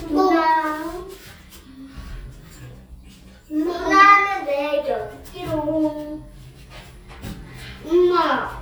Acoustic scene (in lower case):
elevator